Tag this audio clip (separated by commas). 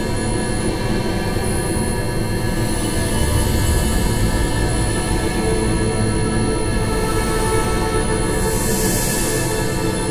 Music, Scary music